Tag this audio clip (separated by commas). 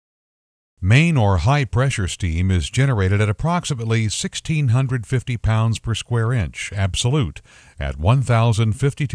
Speech